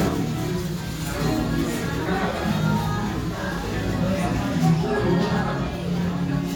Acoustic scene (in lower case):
restaurant